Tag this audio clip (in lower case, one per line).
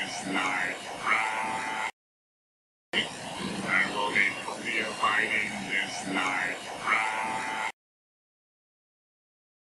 speech